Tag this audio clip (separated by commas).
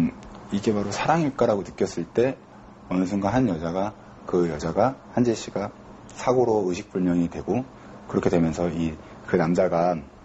Speech